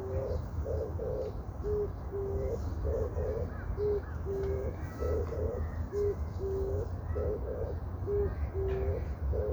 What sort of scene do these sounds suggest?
park